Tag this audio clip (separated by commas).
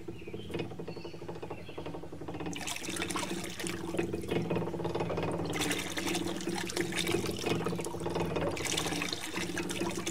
Water tap, Water